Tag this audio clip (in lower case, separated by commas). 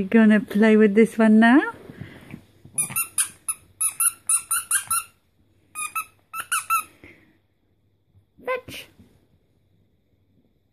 speech, inside a small room